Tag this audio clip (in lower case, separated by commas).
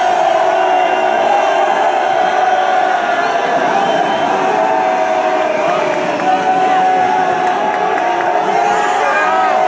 people booing